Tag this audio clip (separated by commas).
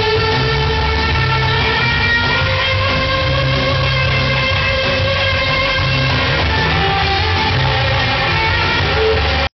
Music